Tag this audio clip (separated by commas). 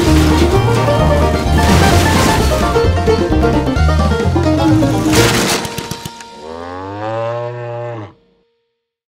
Music